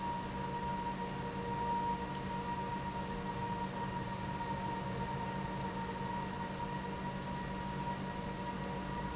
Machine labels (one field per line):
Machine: pump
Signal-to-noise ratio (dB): -6 dB